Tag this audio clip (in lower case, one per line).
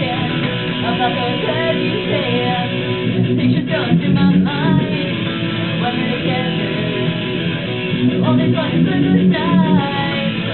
music
strum
guitar
musical instrument
plucked string instrument